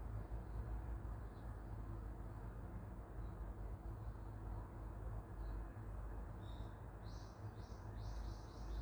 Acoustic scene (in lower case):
park